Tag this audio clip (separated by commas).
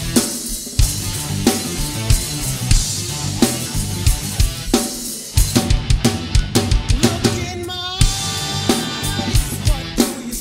playing drum kit, Music, Drum kit, Bass drum, Drum, Musical instrument